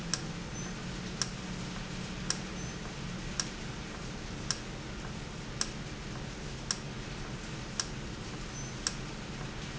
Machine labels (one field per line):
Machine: valve